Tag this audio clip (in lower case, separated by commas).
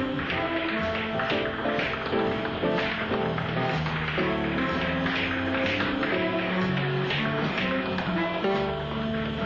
tap, music